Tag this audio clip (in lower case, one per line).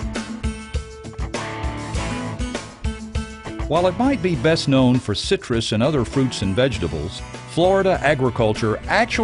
speech
music